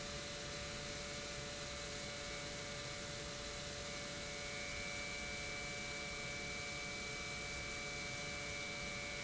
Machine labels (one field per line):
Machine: pump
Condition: normal